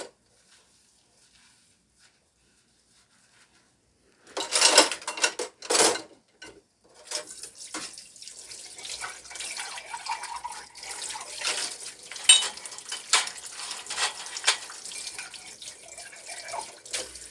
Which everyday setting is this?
kitchen